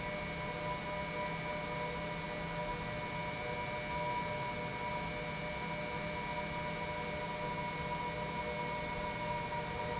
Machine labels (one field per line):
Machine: pump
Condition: normal